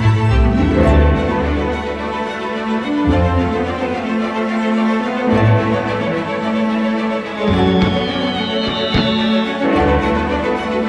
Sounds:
Sound effect, Music

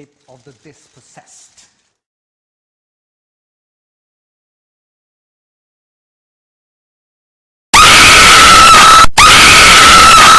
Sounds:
Narration, Speech, Male speech

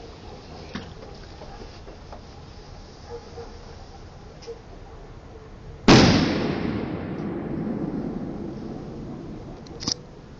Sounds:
Firecracker

